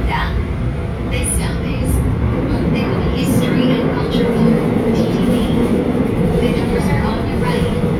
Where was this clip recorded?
on a subway train